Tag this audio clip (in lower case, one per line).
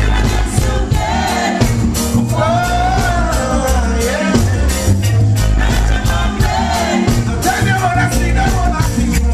music